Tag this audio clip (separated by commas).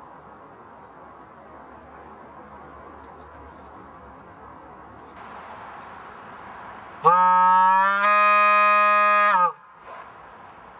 honking